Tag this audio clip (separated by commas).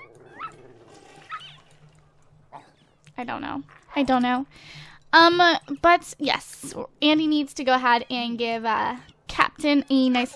Speech